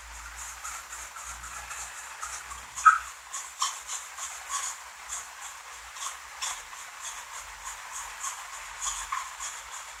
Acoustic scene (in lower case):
restroom